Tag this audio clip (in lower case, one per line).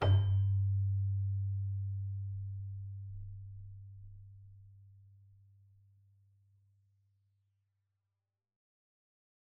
keyboard (musical)
music
musical instrument